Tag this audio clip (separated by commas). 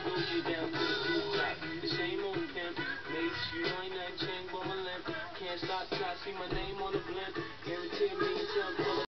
Music